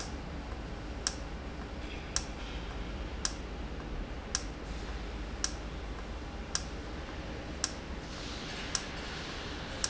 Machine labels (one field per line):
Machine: valve